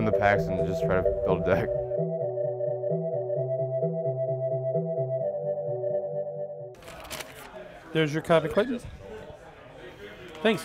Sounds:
speech
music

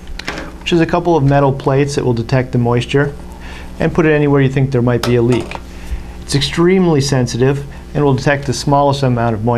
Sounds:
reversing beeps

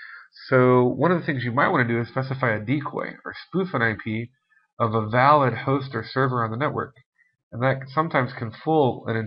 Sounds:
speech

